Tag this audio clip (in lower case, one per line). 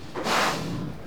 livestock
animal